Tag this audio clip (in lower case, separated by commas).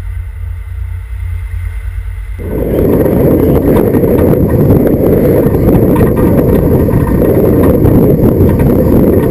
boat, wind noise (microphone), wind